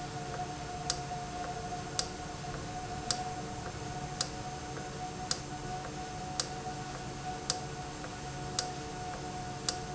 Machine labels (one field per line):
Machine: valve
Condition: normal